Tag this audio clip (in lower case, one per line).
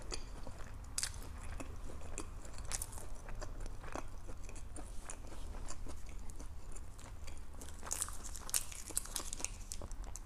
people whispering